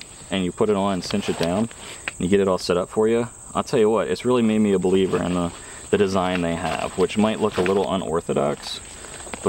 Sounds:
Insect, Speech, outside, rural or natural

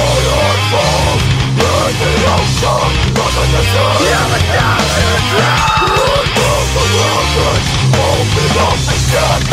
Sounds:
Music, Sound effect

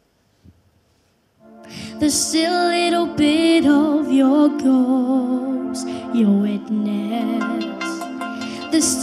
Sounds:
Female singing, Music, Child singing

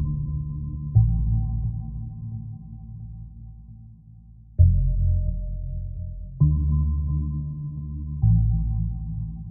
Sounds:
Background music, Music

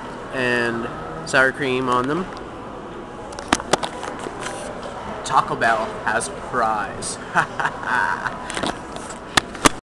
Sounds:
Speech

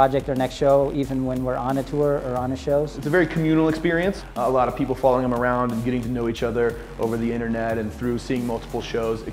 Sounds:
Speech, Music

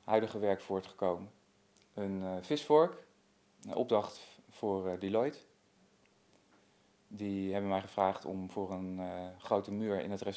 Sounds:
Speech

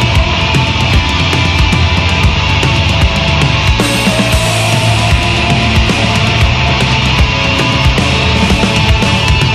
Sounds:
Music

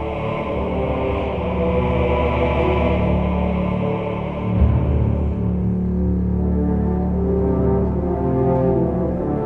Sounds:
Music

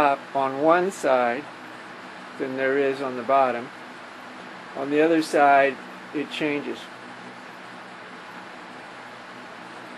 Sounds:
Speech

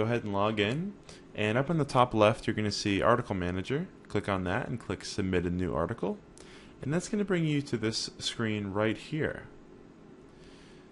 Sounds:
Speech

